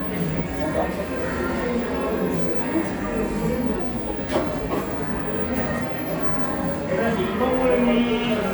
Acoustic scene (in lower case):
cafe